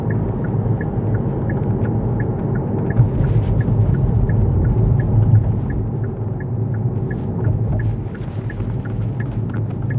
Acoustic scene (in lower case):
car